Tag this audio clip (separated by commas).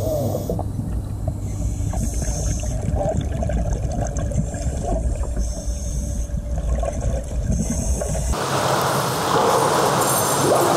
scuba diving